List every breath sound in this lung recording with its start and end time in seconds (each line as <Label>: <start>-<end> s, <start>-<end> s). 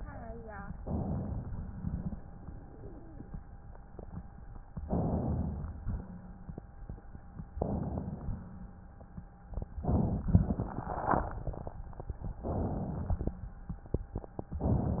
Inhalation: 0.84-1.67 s, 4.84-5.83 s, 7.51-8.41 s, 12.45-13.34 s
Exhalation: 1.67-2.24 s
Wheeze: 2.70-3.25 s
Crackles: 7.50-8.39 s